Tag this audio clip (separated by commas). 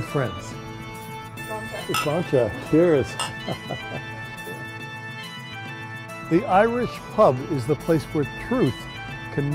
Music, Speech